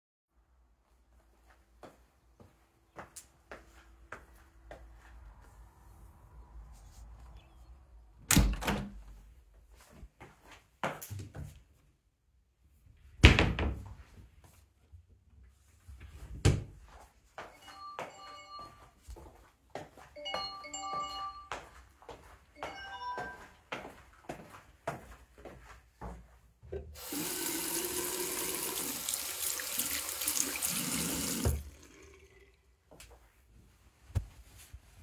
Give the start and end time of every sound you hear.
1.7s-5.1s: footsteps
8.0s-9.4s: window
9.8s-11.6s: footsteps
13.1s-14.1s: wardrobe or drawer
15.8s-16.8s: wardrobe or drawer
17.3s-26.6s: footsteps
17.6s-23.7s: phone ringing
26.6s-32.5s: running water
32.8s-33.2s: footsteps

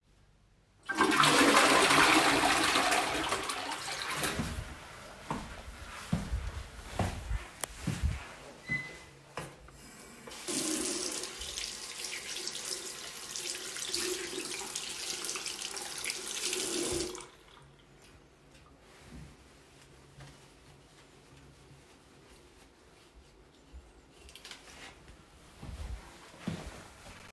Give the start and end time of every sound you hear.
0.8s-4.8s: toilet flushing
5.2s-10.4s: footsteps
7.5s-7.9s: light switch
10.4s-17.3s: running water
25.6s-27.3s: footsteps

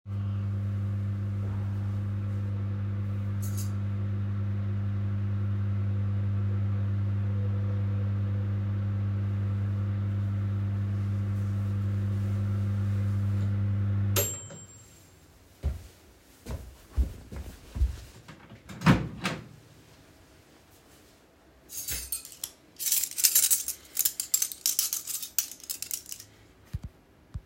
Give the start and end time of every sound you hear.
0.0s-14.7s: microwave
15.5s-19.0s: footsteps
19.1s-19.6s: microwave
21.6s-27.0s: cutlery and dishes
26.6s-27.5s: footsteps

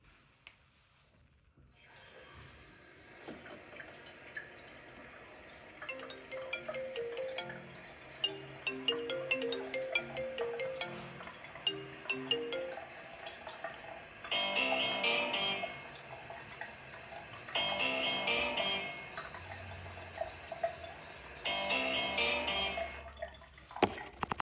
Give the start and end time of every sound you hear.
1.7s-23.4s: running water
5.5s-12.9s: phone ringing
14.2s-15.9s: phone ringing
17.4s-18.9s: phone ringing
21.3s-23.2s: phone ringing

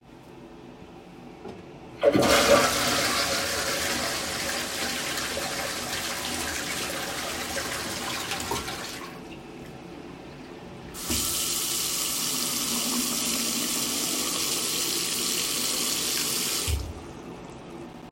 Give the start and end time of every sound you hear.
2.0s-9.2s: toilet flushing
10.9s-16.9s: running water

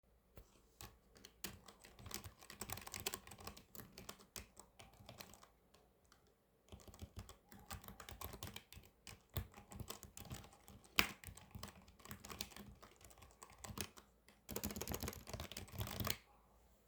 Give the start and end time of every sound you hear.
0.5s-16.3s: keyboard typing

